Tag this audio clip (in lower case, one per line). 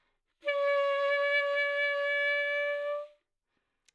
musical instrument
music
woodwind instrument